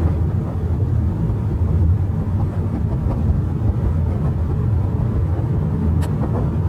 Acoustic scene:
car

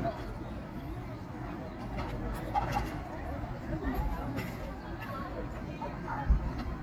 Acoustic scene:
park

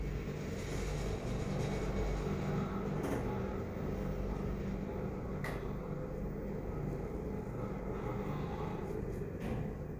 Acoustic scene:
elevator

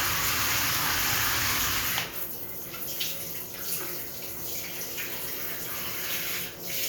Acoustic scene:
restroom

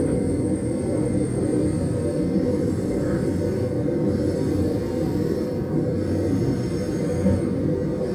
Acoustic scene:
subway train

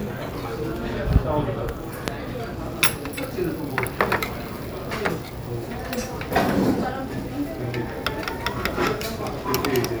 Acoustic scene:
restaurant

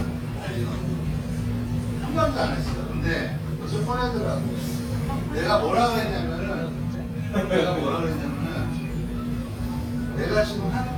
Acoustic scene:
crowded indoor space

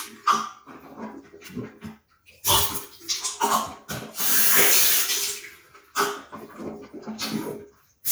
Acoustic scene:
restroom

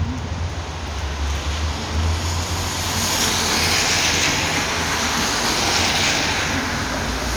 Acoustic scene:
street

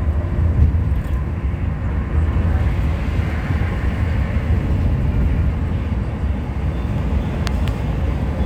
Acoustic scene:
bus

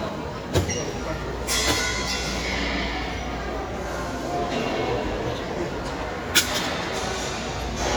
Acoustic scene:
crowded indoor space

